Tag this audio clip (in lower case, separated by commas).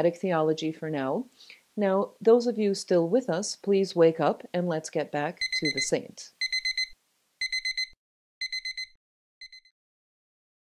speech, inside a small room